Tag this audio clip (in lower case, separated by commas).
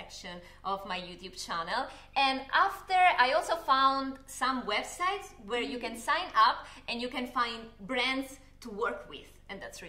speech